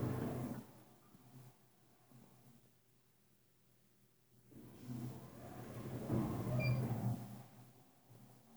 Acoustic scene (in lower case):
elevator